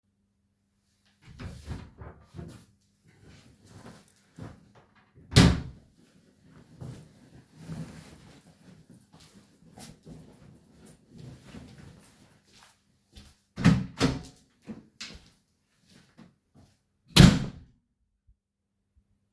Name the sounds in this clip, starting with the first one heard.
wardrobe or drawer, door